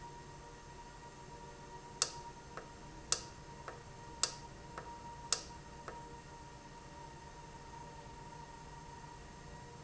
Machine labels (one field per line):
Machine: valve